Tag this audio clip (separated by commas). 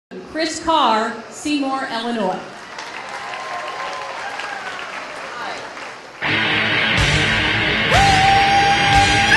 Speech, Applause, Music